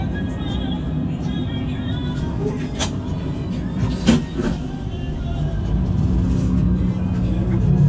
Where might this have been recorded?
on a bus